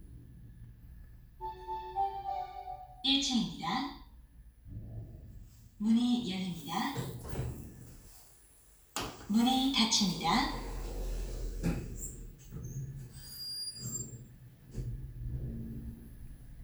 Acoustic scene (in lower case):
elevator